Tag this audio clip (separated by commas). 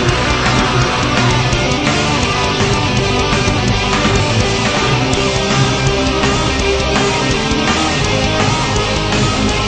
Music